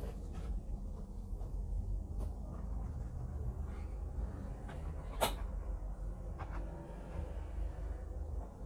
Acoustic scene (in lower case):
bus